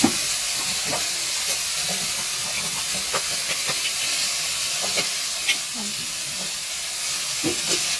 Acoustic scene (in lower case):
kitchen